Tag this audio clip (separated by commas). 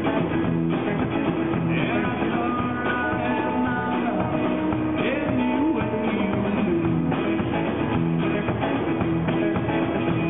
Music, Singing, Guitar